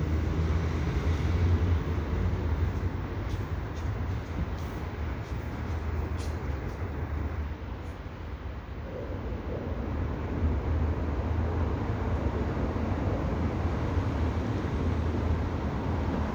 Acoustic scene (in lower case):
residential area